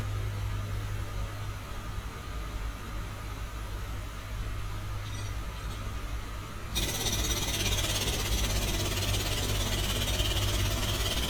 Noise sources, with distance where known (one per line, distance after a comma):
jackhammer, near